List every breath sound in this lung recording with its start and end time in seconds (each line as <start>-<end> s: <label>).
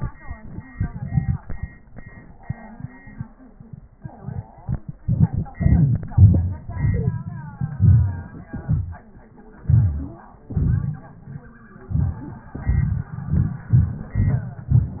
7.59-8.45 s: inhalation
8.46-9.58 s: exhalation
9.62-10.44 s: inhalation
10.45-11.80 s: exhalation
11.83-12.51 s: inhalation
12.51-13.20 s: exhalation
13.18-13.68 s: inhalation
13.67-14.14 s: exhalation
14.16-14.66 s: inhalation
14.67-15.00 s: exhalation